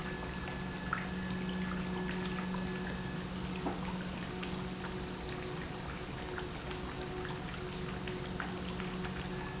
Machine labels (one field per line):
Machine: pump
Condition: normal